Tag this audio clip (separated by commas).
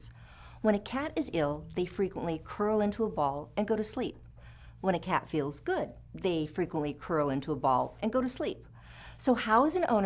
Speech